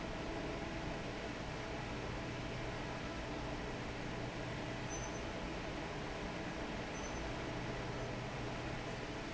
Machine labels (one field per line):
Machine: fan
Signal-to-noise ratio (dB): 0 dB